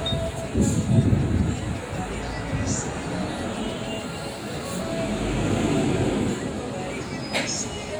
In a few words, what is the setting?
street